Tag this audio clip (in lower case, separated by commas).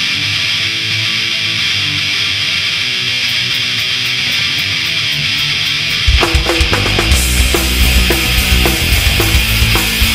punk rock, grunge, exciting music, music, heavy metal, rock and roll